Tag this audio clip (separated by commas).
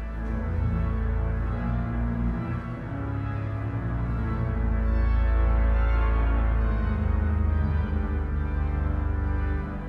Music